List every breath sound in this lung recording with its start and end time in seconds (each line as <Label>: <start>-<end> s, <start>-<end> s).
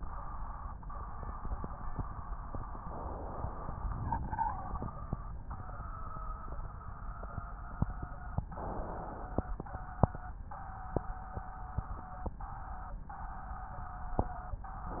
Inhalation: 3.18-4.33 s, 8.49-9.63 s